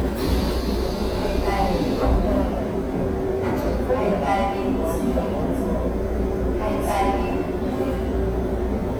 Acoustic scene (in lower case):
subway train